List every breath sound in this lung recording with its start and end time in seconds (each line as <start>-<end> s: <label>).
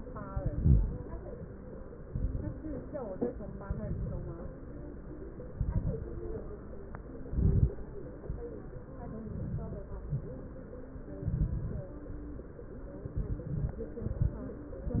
0.24-1.02 s: exhalation
0.24-1.02 s: crackles
2.03-2.56 s: exhalation
2.03-2.56 s: crackles
3.61-4.42 s: exhalation
3.61-4.42 s: crackles
5.49-6.31 s: exhalation
5.49-6.31 s: crackles
7.26-7.79 s: exhalation
7.26-7.79 s: crackles
9.18-9.86 s: exhalation
9.18-9.86 s: crackles
11.23-11.91 s: exhalation
11.23-11.91 s: crackles
13.13-13.81 s: exhalation
13.13-13.81 s: crackles
14.04-14.46 s: inhalation
14.04-14.46 s: crackles